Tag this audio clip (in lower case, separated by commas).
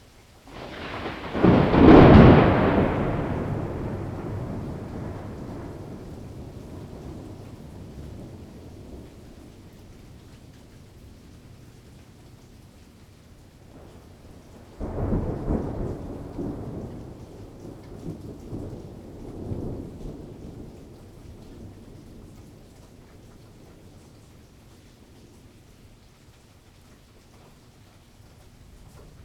thunderstorm, thunder